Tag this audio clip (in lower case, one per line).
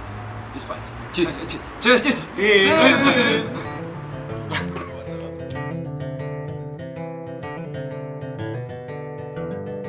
speech
music